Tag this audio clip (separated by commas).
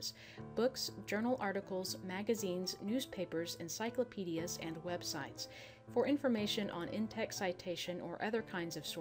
Speech, Music